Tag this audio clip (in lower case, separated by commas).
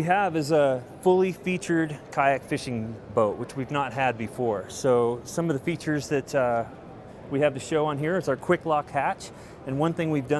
speech